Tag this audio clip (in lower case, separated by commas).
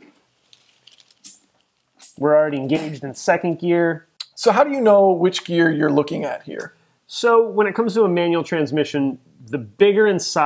inside a small room, speech